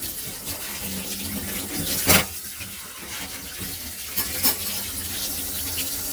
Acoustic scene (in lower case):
kitchen